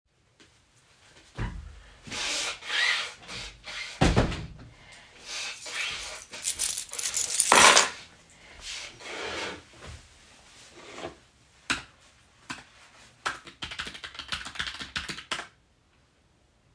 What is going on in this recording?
I came into the room and closed the door while the other person was blowing the nose. Put the keys on the desk and sat down to start typing on the keyboard.